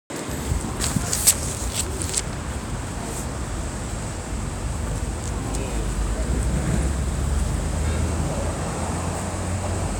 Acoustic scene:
street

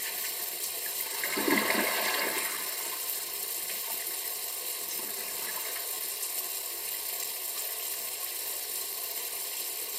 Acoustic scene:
restroom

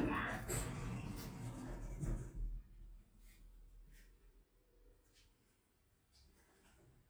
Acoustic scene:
elevator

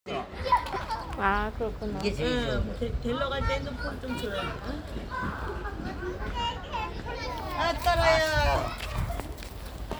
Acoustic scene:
park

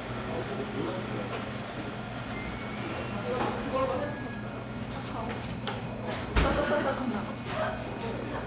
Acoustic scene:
crowded indoor space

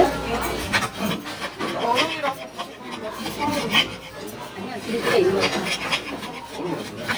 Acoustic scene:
restaurant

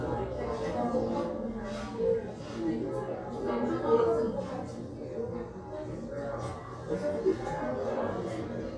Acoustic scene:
crowded indoor space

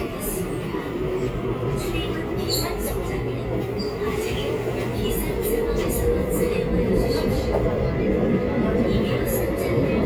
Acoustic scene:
subway train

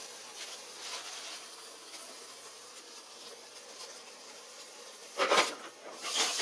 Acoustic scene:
kitchen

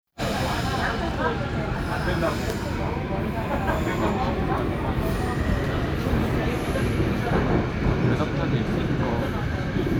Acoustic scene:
subway train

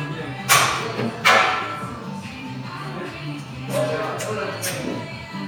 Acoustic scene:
crowded indoor space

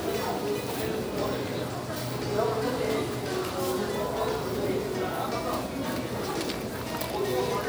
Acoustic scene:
crowded indoor space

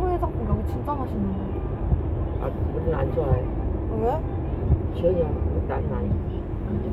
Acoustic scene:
car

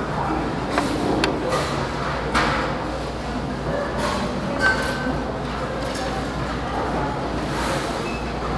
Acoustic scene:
restaurant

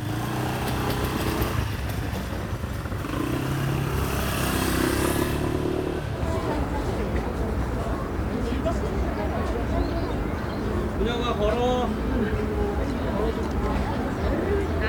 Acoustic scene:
residential area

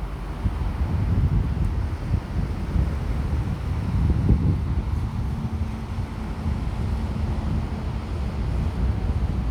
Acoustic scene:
street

